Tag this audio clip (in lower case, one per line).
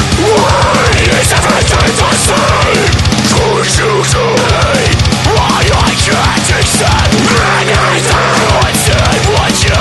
music